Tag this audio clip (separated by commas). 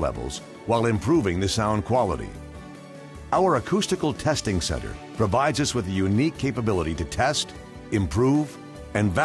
Music, Speech